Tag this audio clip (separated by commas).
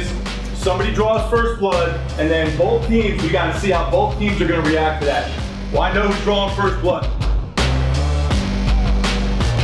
Speech, Music